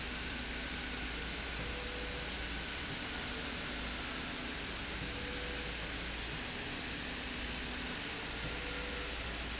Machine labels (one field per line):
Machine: slide rail